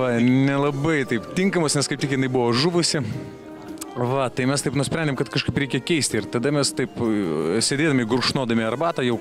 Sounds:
Music, Speech

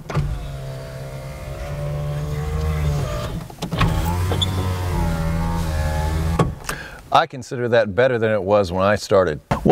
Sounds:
opening or closing car electric windows

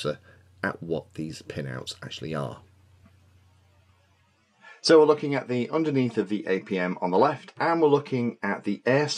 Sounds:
monologue, Speech

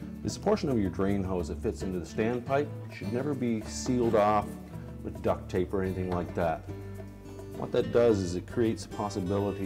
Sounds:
Music, Speech

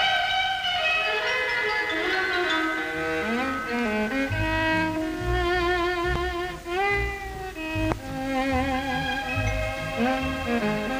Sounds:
Music, Violin, Musical instrument

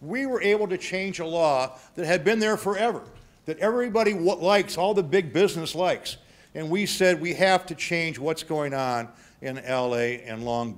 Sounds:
Narration, Speech, Male speech

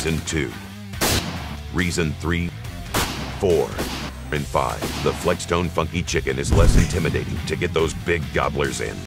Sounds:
Speech, Music

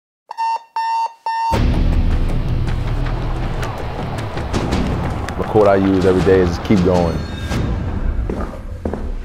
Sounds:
Music, Speech, Alarm

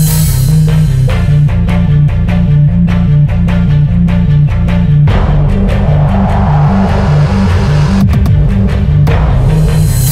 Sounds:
Music

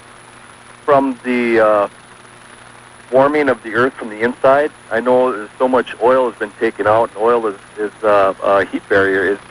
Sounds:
Speech

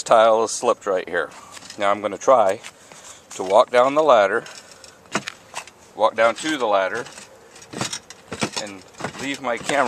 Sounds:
Speech

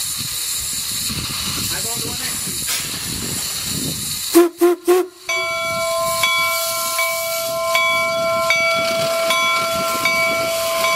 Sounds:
Rail transport, Speech, Railroad car, Vehicle, Steam whistle, Train

